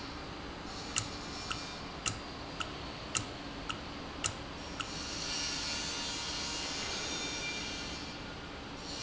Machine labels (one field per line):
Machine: valve